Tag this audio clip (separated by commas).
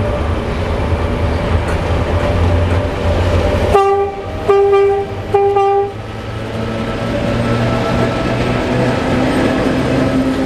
Rail transport, Train, Train horn, Railroad car